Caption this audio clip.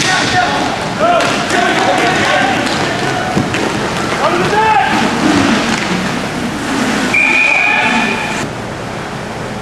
Men are shouting followed by a whistle blow